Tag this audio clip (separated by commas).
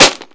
Tools